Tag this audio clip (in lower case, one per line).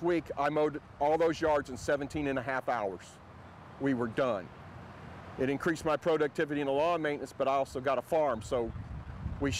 lawn mower
vehicle
speech